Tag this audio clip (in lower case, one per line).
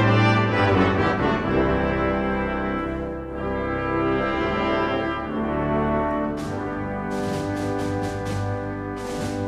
french horn
brass instrument
trumpet